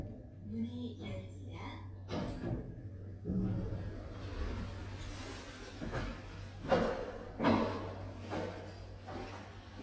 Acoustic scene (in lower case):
elevator